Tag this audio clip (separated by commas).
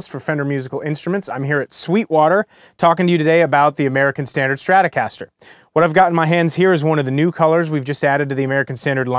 Speech